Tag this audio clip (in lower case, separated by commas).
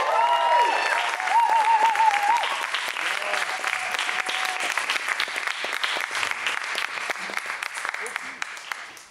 speech